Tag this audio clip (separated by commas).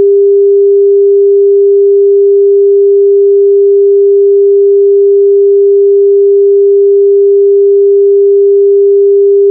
Sine wave